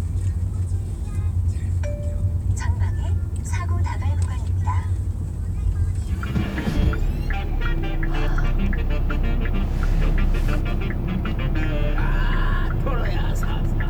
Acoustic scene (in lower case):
car